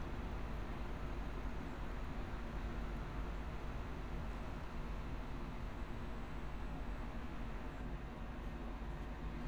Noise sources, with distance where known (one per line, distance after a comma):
background noise